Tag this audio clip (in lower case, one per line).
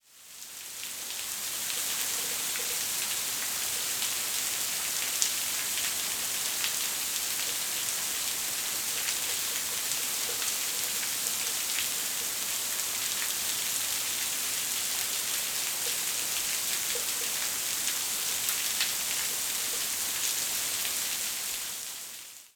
water